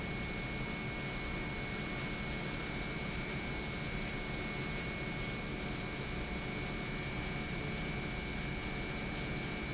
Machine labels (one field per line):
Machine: pump